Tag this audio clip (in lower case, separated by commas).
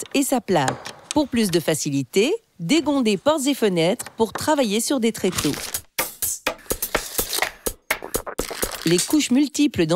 speech, music